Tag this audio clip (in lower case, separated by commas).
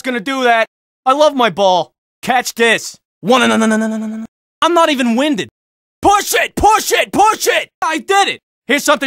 speech